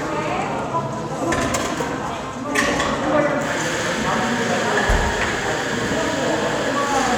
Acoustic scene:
cafe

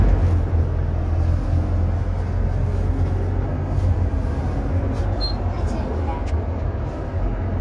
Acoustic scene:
bus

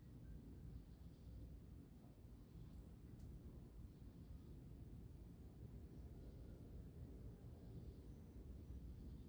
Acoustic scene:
residential area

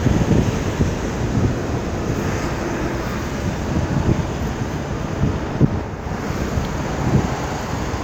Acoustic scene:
street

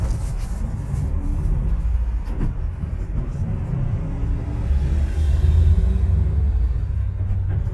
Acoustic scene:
bus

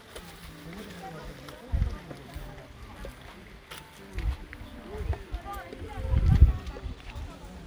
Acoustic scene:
park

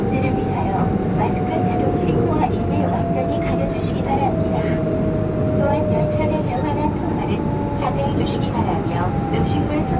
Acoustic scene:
subway train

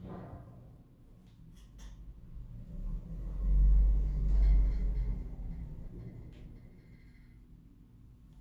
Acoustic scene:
elevator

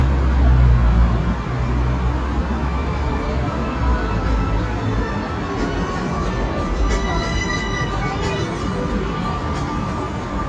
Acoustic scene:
street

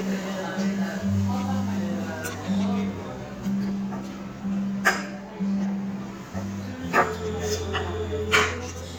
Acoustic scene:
restaurant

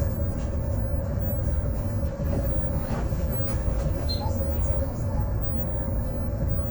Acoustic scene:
bus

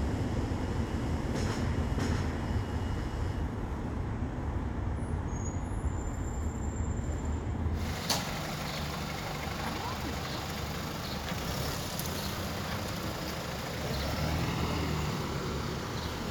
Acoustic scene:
residential area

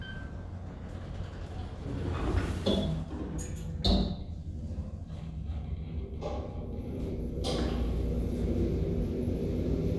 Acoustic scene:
elevator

